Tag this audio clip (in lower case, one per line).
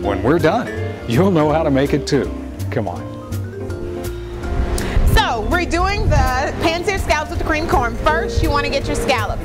music
speech